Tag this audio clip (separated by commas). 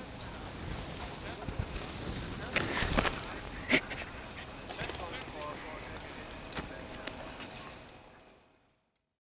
Speech